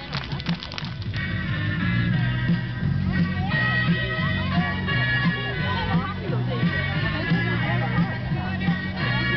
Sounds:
music
speech

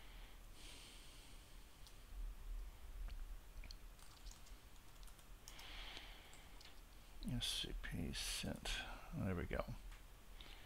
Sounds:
speech

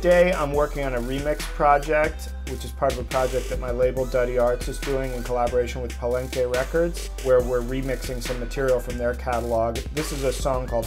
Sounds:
speech
music
musical instrument
sampler

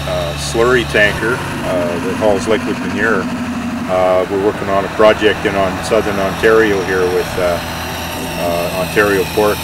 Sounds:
speech

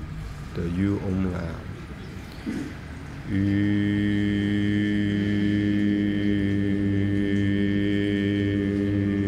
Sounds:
speech

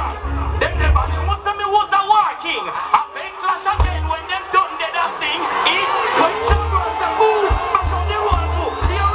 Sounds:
music

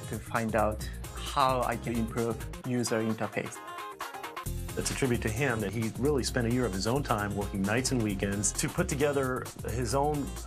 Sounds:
music
speech

